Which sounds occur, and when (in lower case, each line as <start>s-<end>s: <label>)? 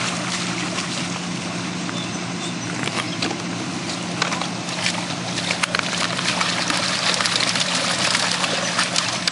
0.0s-9.3s: mechanisms
0.0s-9.3s: water
4.6s-4.9s: generic impact sounds
6.1s-9.3s: pour